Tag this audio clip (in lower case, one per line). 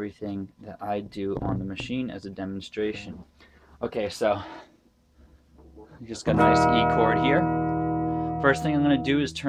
speech
music
chorus effect
sampler